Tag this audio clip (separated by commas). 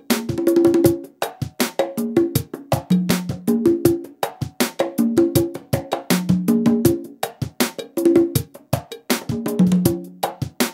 playing congas